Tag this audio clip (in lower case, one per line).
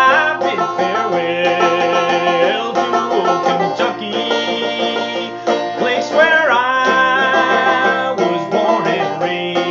banjo
music
playing banjo